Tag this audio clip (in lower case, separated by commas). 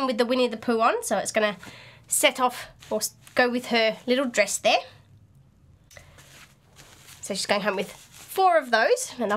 inside a small room, speech